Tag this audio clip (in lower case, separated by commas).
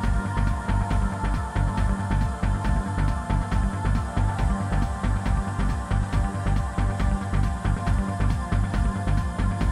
music